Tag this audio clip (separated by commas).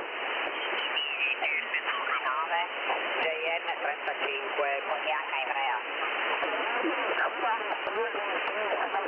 Speech